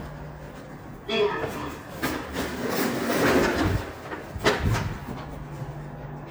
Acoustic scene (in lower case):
elevator